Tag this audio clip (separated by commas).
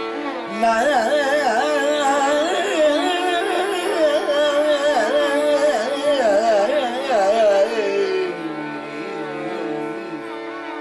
Musical instrument, Carnatic music, Classical music, Music